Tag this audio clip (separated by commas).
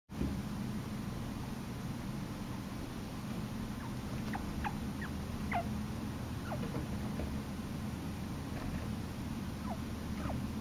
chinchilla barking